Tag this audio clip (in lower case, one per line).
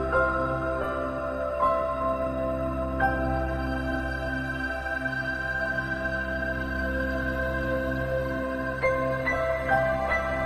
music
new-age music